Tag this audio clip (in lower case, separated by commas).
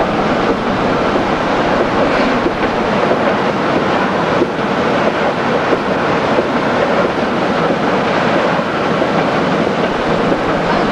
vehicle